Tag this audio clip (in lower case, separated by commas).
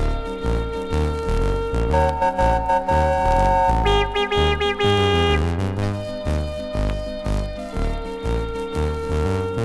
electronic music, music, electronica